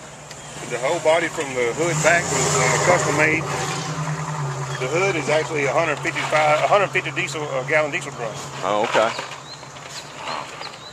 Man speaking with faint engine running in background